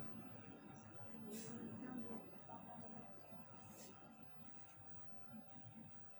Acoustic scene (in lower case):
bus